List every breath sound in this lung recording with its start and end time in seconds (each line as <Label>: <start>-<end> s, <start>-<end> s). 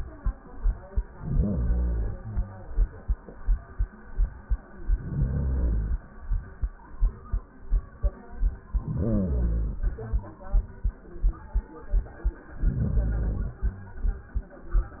Inhalation: 1.13-2.63 s, 4.67-6.17 s, 8.66-10.43 s, 12.48-13.94 s